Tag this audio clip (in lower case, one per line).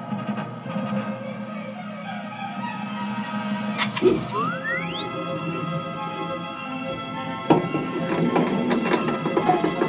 music